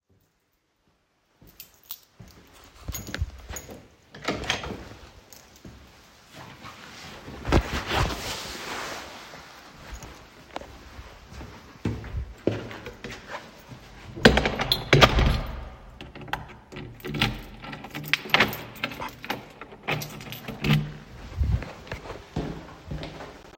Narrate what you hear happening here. I was leaving from the appartment, closed the door, and walked away in the hallway. The phone was in the pocket